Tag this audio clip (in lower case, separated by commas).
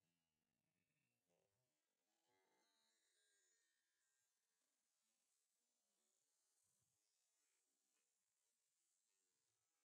oink